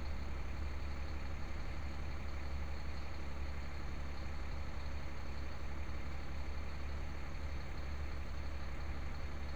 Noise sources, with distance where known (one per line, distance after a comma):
engine of unclear size